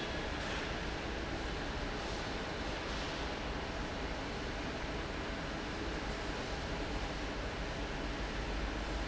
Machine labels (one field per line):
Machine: fan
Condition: normal